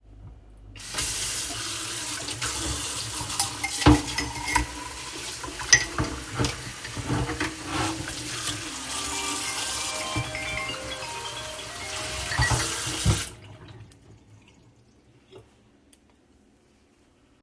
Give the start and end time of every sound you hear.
0.7s-14.1s: running water
3.4s-4.7s: cutlery and dishes
5.6s-8.1s: cutlery and dishes
8.8s-12.6s: phone ringing
12.3s-13.4s: cutlery and dishes

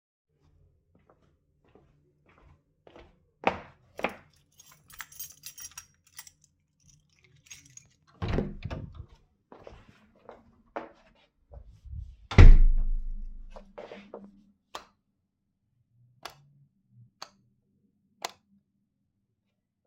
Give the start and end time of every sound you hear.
1.4s-4.6s: footsteps
4.2s-8.2s: keys
8.1s-9.1s: door
9.1s-12.3s: footsteps
12.2s-13.4s: door
13.1s-14.7s: footsteps
14.6s-14.9s: light switch
16.1s-16.5s: light switch
17.0s-17.4s: light switch
18.1s-18.5s: light switch

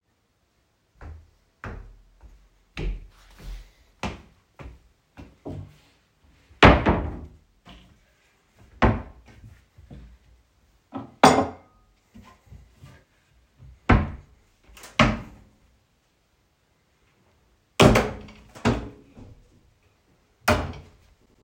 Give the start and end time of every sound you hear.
0.9s-5.8s: footsteps
6.5s-7.4s: wardrobe or drawer
7.6s-7.9s: footsteps
8.8s-9.2s: wardrobe or drawer
9.4s-10.1s: footsteps
12.1s-13.1s: footsteps
13.8s-14.3s: wardrobe or drawer
14.7s-15.5s: wardrobe or drawer

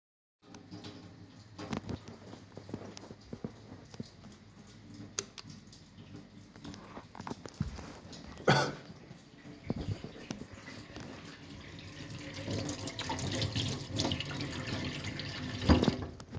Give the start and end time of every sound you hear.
0.2s-16.4s: running water
5.1s-5.5s: light switch

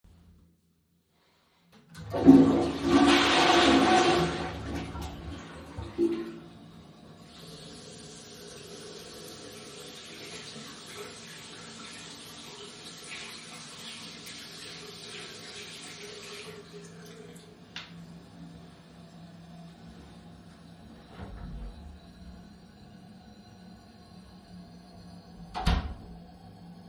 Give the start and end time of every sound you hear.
2.0s-6.5s: toilet flushing
7.1s-17.1s: running water
21.1s-21.8s: door
25.5s-26.1s: door

